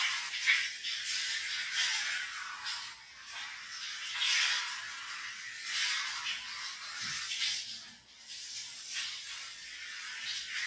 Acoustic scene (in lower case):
restroom